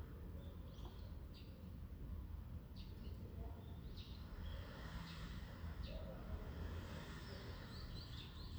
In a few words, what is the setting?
residential area